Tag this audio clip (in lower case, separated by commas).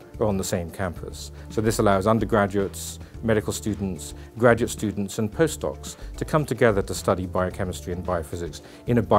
music, speech